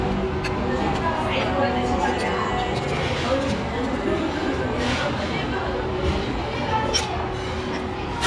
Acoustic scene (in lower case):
restaurant